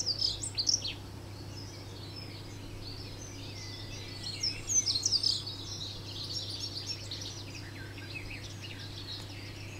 Birds chirp with distant humming